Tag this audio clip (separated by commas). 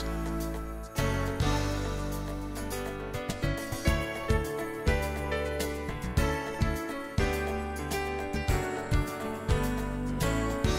Music